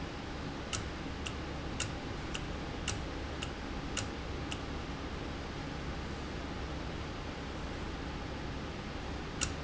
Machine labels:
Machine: valve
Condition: normal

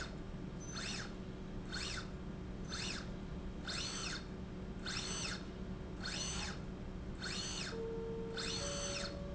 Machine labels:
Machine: slide rail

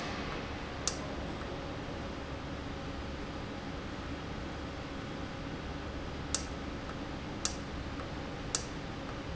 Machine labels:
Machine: valve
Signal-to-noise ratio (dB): -6 dB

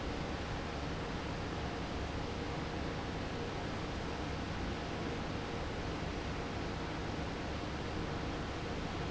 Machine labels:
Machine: fan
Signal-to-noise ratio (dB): -6 dB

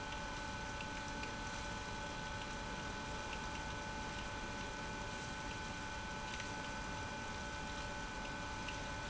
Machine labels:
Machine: pump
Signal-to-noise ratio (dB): 6 dB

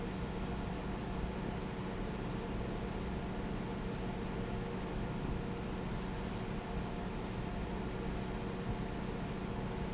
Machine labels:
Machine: fan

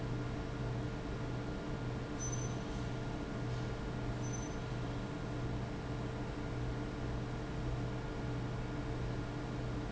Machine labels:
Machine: fan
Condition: abnormal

